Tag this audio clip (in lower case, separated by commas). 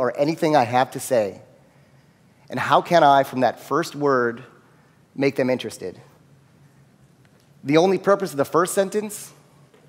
speech, writing